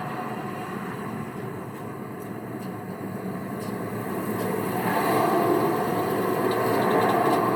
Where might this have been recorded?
on a street